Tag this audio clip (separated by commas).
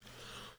Breathing, Respiratory sounds